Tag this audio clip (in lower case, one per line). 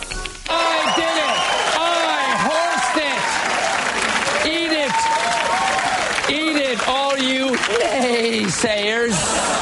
speech